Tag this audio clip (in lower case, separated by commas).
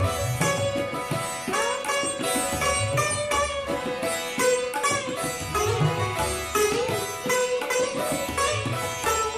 playing sitar